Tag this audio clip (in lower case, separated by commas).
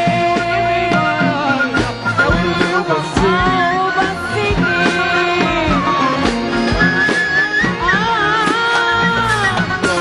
middle eastern music, music